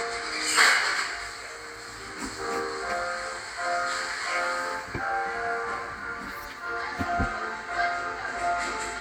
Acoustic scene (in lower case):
cafe